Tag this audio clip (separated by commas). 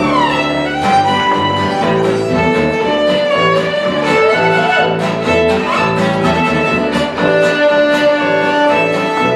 Musical instrument, Violin, Music